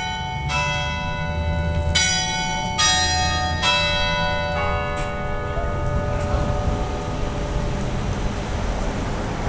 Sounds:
Tick-tock

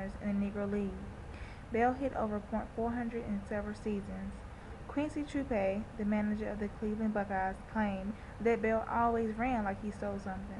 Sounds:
Speech

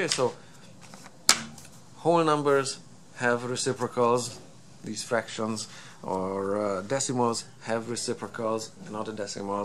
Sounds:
inside a small room, Speech

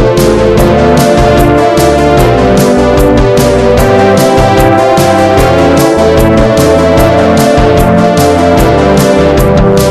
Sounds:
Music

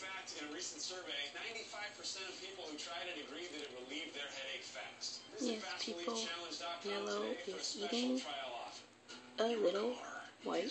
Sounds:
Speech

